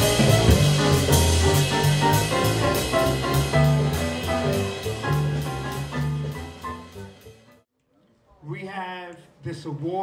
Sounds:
jazz
music
speech

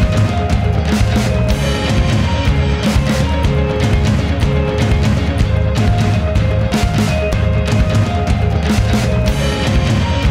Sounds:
music

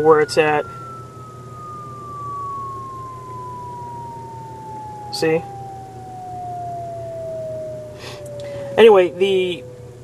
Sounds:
speech

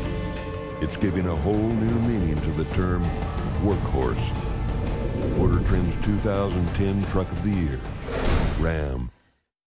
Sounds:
music
speech

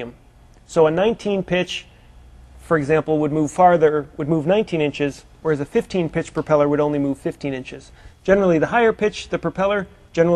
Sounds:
speech

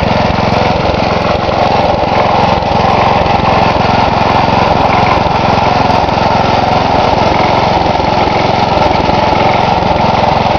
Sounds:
idling

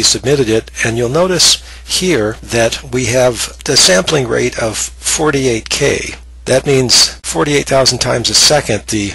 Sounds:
speech

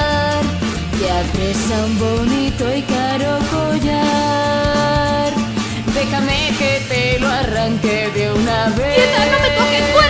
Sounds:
music

